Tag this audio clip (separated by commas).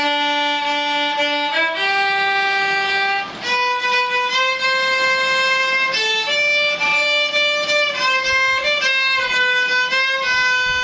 Musical instrument, fiddle, Music